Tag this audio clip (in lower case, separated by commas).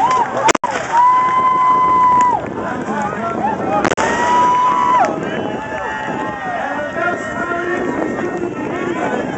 speech